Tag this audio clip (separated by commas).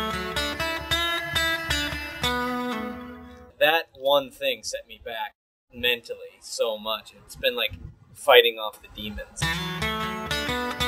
Speech, Music